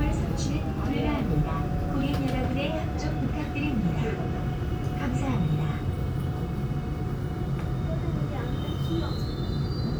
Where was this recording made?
on a subway train